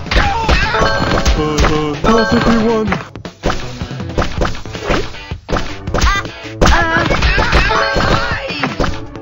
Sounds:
thwack

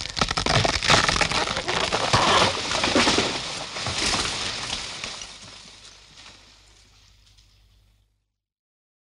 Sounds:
crushing

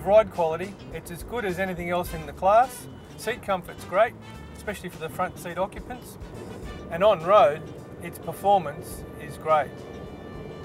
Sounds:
speech, car, vehicle

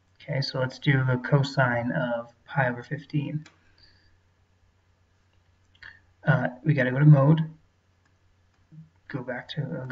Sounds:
speech

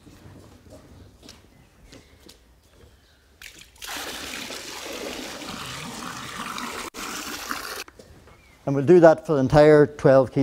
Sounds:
water, speech

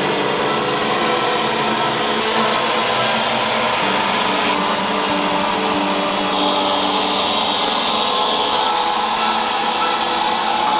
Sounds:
music, power tool

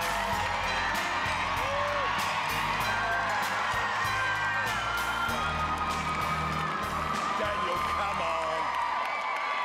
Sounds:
music, speech

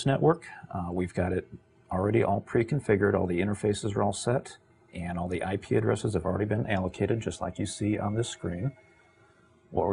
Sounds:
speech

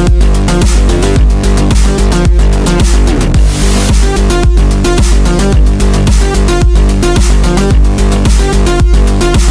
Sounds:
music

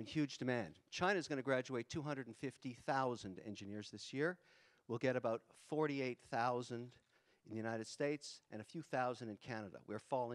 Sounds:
speech

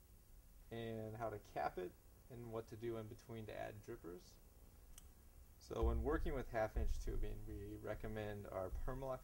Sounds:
speech

